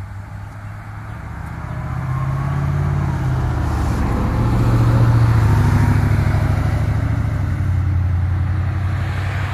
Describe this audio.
A vehicle is passing by